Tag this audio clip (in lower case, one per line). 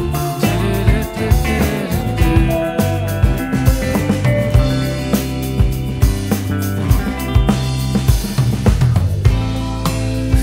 bass drum
playing bass drum
music